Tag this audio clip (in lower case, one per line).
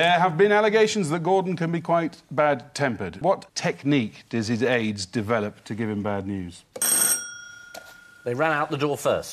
speech
inside a small room